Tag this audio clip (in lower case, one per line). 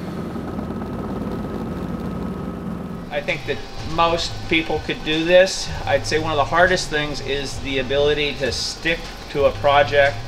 aircraft
vehicle
speech
helicopter